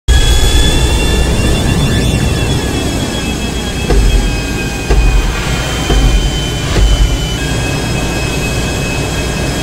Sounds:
Jet engine

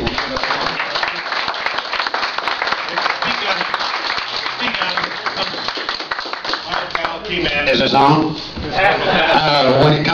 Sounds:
Speech, man speaking, Conversation, monologue

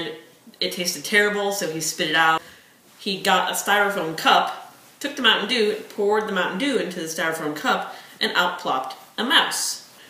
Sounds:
Speech

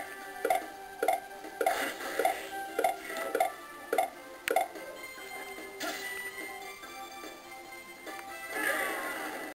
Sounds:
Music

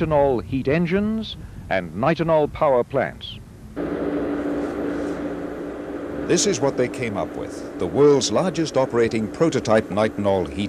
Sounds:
Engine, Heavy engine (low frequency), Speech

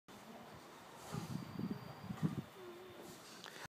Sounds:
Speech

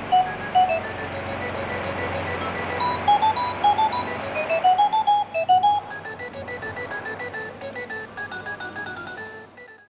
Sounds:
Music, Alarm clock, Clock

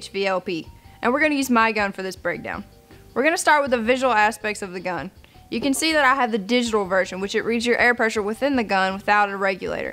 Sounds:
Speech, Music

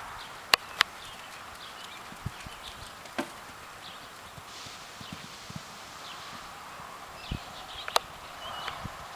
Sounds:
horse clip-clop, Animal, Clip-clop, Horse

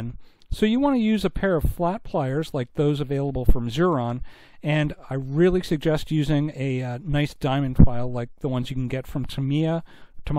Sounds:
Speech

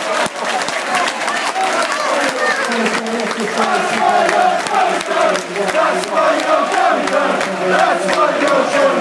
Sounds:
Speech

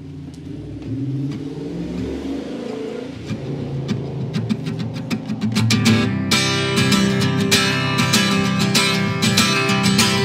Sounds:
outside, urban or man-made, Music

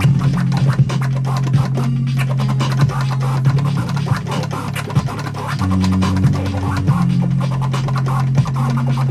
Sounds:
Electronic music, Music, Scratching (performance technique)

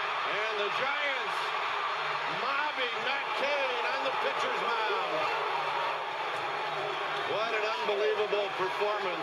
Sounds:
Speech

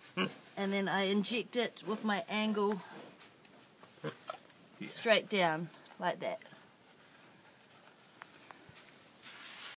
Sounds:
Oink, Speech

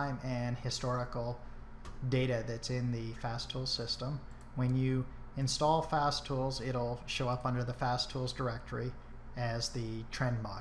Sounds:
Speech

